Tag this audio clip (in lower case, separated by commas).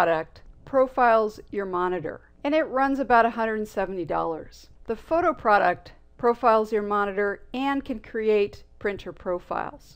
speech